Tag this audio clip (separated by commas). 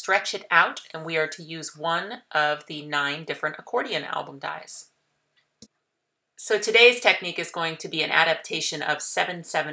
Speech